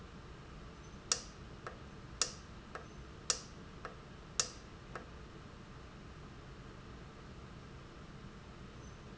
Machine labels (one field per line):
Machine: valve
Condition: normal